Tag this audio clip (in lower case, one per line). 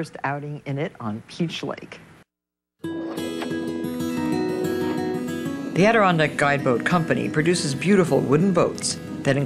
speech
music